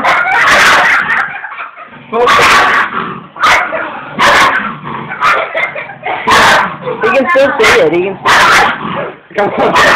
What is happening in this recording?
Dogs bark and growl as people laugh and speak